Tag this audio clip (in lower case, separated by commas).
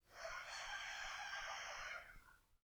animal, livestock, fowl, rooster